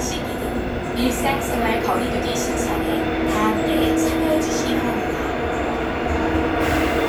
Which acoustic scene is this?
subway train